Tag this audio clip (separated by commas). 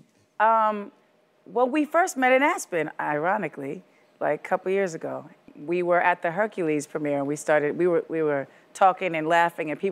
Speech